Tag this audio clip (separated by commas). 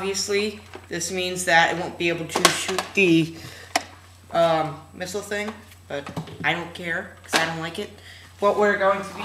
Speech